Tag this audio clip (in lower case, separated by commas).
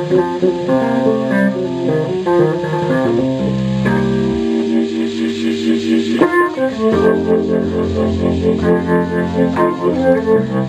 musical instrument, music, keyboard (musical), piano